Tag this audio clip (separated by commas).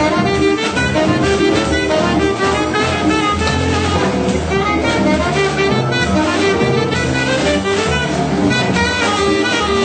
Guitar, Musical instrument, Saxophone, Music, Drum, playing saxophone